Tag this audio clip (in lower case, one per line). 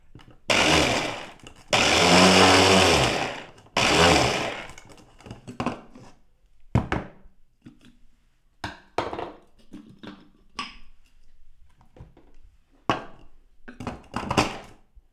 home sounds